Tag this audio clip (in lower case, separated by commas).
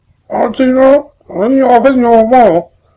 speech, human voice